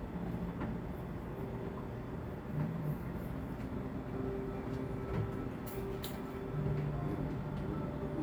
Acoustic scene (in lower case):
cafe